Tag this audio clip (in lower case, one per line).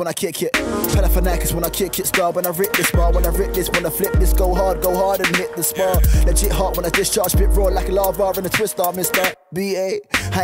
music